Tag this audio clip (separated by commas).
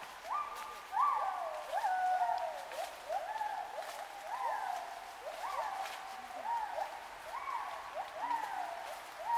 gibbon howling